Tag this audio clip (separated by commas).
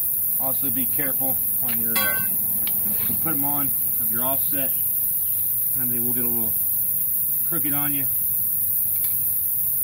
Speech